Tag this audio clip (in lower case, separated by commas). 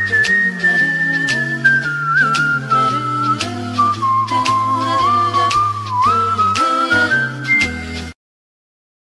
music